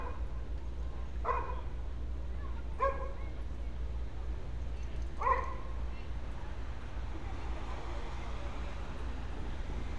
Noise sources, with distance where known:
engine of unclear size, far; unidentified human voice, far; dog barking or whining, near

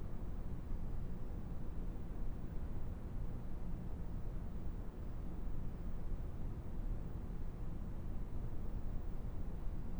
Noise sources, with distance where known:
background noise

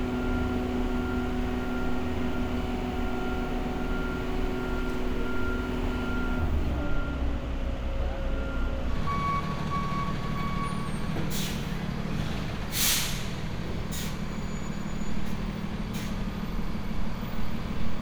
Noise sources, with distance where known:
large-sounding engine, near; reverse beeper

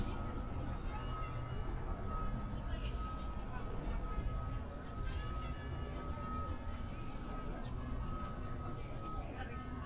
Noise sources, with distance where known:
music from a fixed source; person or small group talking

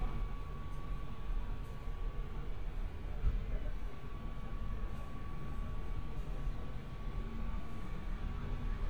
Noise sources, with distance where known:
background noise

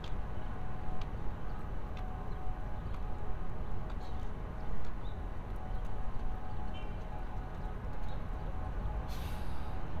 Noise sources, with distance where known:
car horn, far

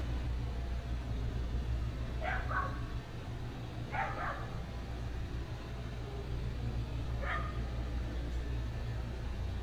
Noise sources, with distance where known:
dog barking or whining, far

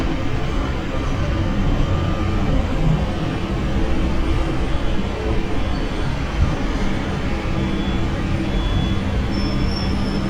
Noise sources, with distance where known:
large-sounding engine; reverse beeper

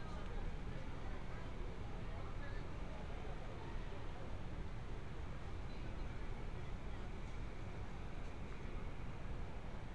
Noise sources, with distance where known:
person or small group talking, far

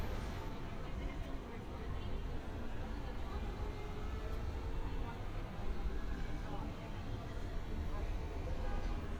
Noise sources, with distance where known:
car horn, far; unidentified human voice

